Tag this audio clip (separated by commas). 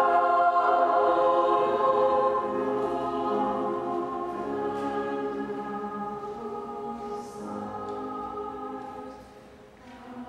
Female singing, Choir, Music